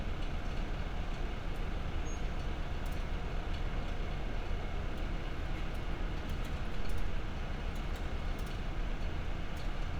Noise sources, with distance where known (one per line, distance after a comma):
engine of unclear size, far